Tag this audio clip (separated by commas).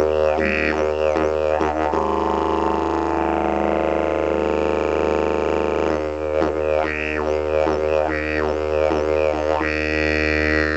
playing didgeridoo